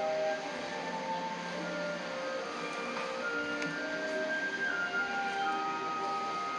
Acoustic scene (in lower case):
cafe